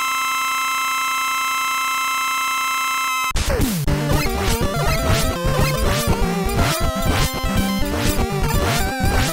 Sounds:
music

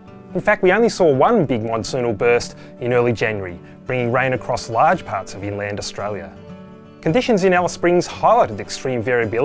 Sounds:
speech, music

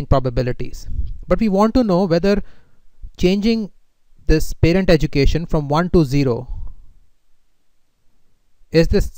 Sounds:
speech

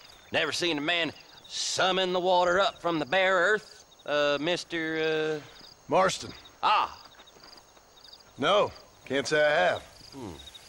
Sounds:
speech

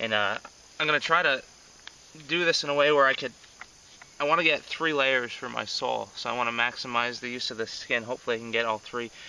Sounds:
speech

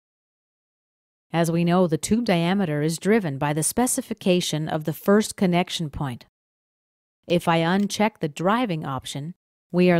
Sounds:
inside a small room, speech

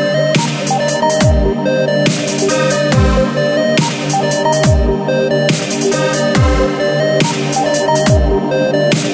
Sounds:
drum and bass

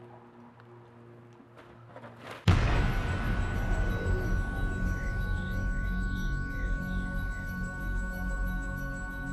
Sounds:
music

